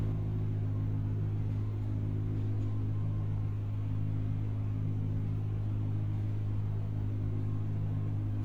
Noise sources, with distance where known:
engine of unclear size

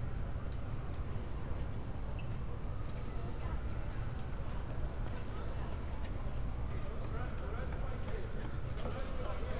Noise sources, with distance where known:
siren
person or small group talking
person or small group shouting

